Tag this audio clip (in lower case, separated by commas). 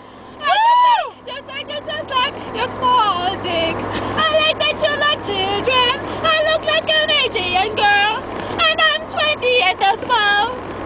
speech, vehicle, car, motor vehicle (road)